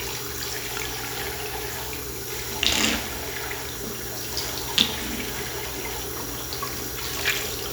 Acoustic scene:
restroom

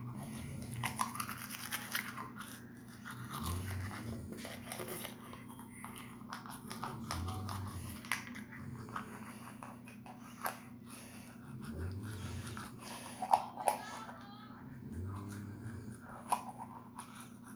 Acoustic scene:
restroom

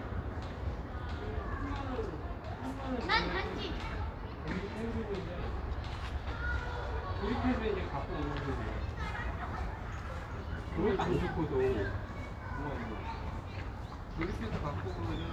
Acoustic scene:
residential area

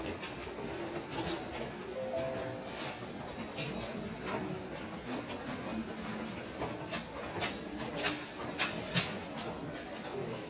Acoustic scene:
subway station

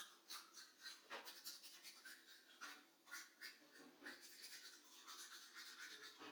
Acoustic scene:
restroom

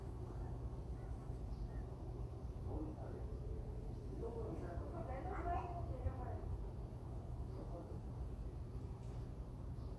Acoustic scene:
residential area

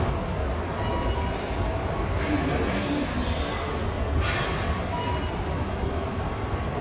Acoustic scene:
subway station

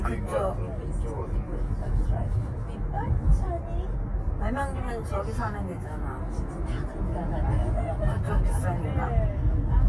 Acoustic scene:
car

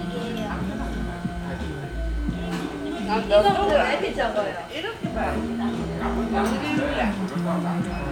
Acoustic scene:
crowded indoor space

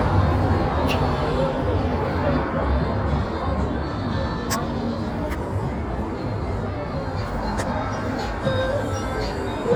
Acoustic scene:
street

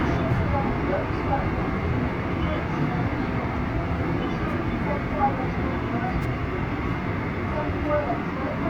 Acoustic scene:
subway train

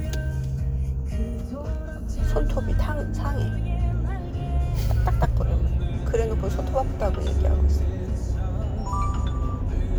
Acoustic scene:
car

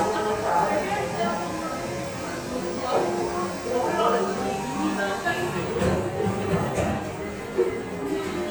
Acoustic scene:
cafe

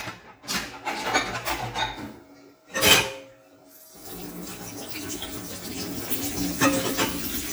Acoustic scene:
kitchen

